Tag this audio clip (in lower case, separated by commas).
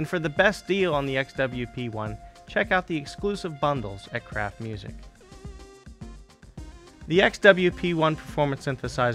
speech, music